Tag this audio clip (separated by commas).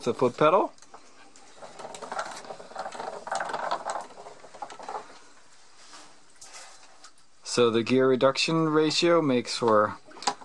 Speech, Tools